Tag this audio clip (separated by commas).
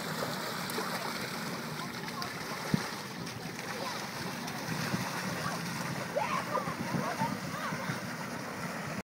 Water vehicle, Vehicle, Speech